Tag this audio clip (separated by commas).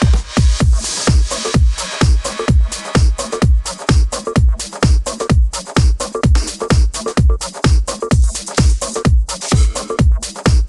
Music, Pop music